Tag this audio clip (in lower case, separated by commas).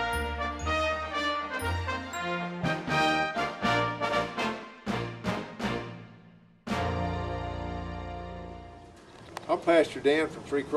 speech, music